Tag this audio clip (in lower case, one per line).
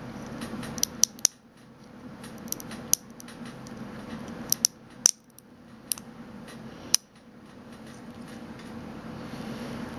printer